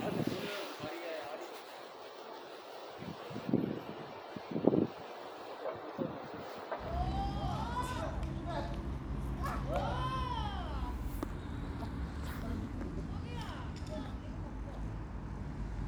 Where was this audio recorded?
in a residential area